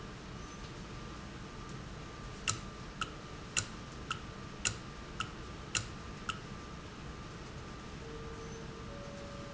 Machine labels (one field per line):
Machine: valve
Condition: normal